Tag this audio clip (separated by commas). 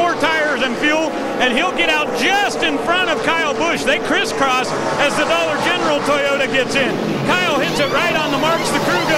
Speech, Car, Vehicle